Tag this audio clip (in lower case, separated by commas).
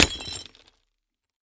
crushing